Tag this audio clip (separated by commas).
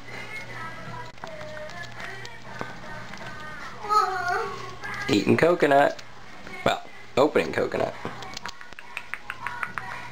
Music, Speech